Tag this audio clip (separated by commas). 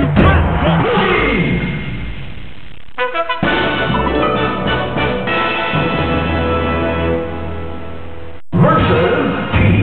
Music, Speech